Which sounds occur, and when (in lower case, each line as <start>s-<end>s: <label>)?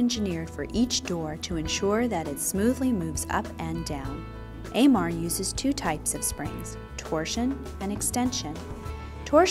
0.0s-4.2s: female speech
0.0s-9.5s: music
4.6s-6.7s: female speech
7.0s-7.6s: female speech
7.8s-8.6s: female speech